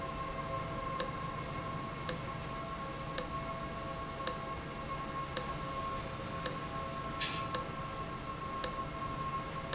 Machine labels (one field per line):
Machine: valve